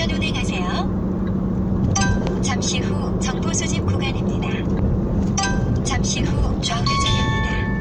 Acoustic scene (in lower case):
car